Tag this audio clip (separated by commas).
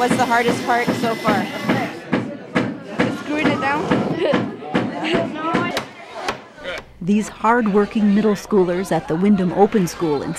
thwack